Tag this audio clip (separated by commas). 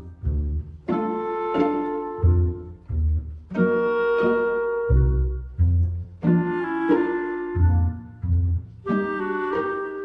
Music